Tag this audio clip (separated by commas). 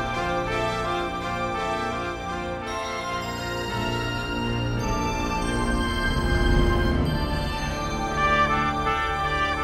Soundtrack music, Music